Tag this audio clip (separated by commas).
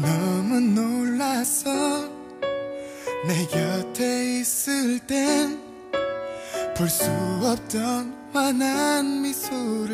Music